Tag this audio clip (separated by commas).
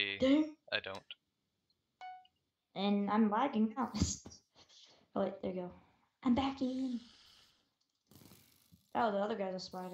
Speech